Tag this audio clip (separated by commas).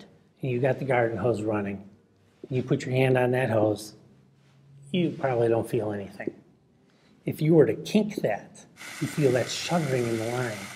Speech